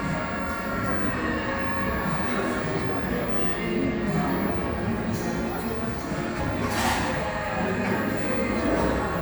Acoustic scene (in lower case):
cafe